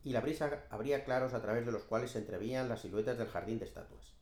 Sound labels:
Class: speech